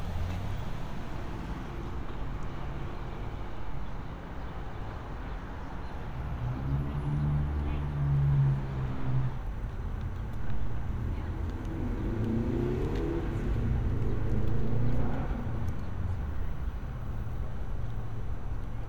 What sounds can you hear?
engine of unclear size